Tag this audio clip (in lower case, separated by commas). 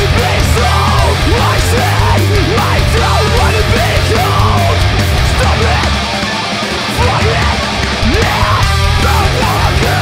funk, music, orchestra